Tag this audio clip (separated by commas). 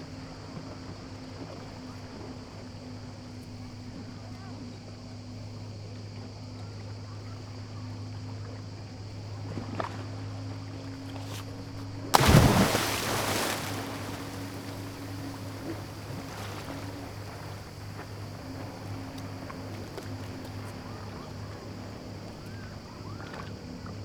surf, Water, Cricket, Insect, Ocean, Animal, Wild animals